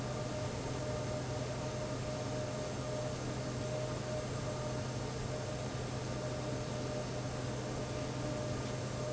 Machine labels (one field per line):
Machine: fan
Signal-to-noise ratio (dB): -6 dB